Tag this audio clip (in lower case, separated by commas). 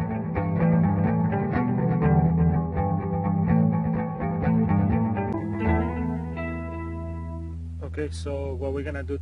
music, speech